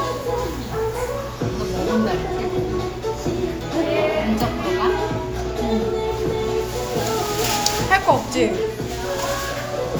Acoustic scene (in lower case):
cafe